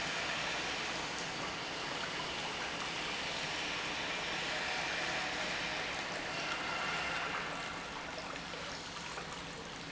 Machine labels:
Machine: pump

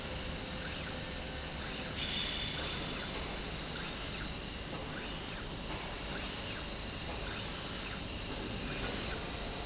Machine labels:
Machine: slide rail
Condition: normal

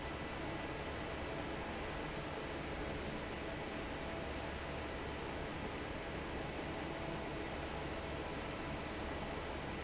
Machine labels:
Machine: fan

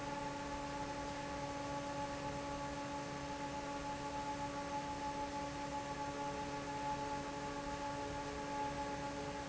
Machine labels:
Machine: fan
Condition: normal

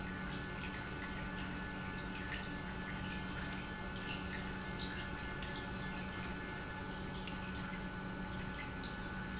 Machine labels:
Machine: pump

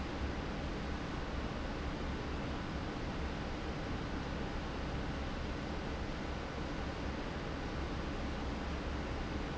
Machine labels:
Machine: fan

